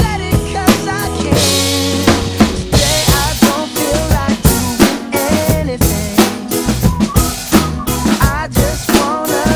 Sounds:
percussion, snare drum, drum kit, drum, cymbal, rimshot, musical instrument

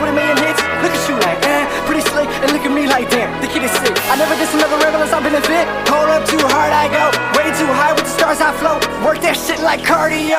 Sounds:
music

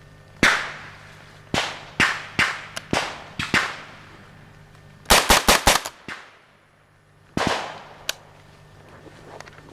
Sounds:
gunshot

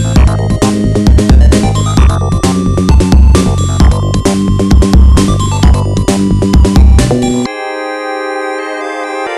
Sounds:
music

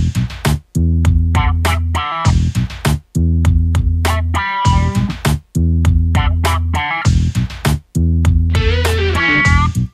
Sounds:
funny music, music

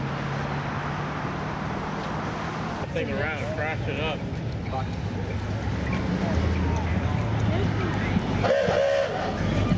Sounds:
speech, motor vehicle (road), car, vehicle

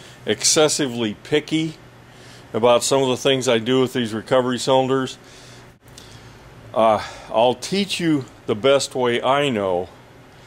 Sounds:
speech

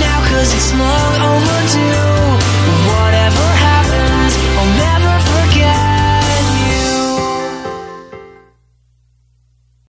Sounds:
music

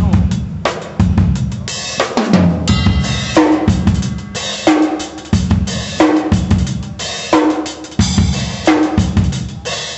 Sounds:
rimshot, drum, snare drum, drum kit, percussion, bass drum

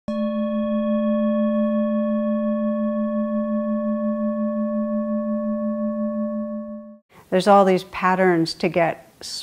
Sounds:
music, speech, singing bowl

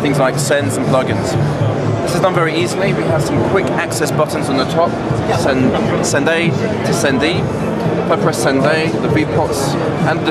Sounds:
speech, music

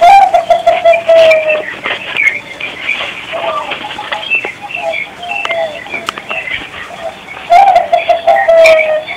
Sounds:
bird call, tweet, bird

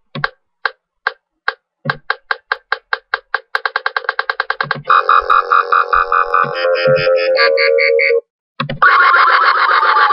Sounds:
electronic music, music

